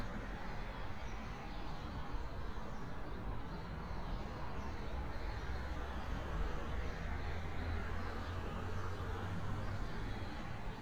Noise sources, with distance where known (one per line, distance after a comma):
medium-sounding engine